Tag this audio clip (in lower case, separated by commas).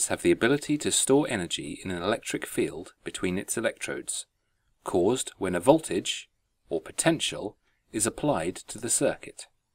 speech